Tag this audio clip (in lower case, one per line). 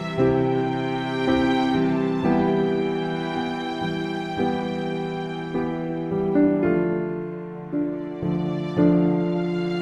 music